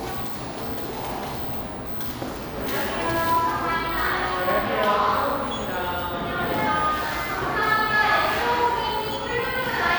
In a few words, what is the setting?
cafe